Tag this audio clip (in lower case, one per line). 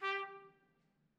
music
brass instrument
musical instrument
trumpet